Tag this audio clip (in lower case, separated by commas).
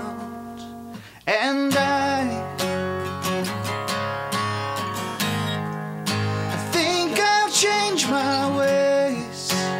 echo, music